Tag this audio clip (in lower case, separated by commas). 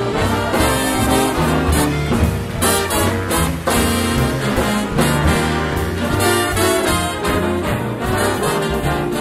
trumpet, brass instrument, playing saxophone, saxophone, trombone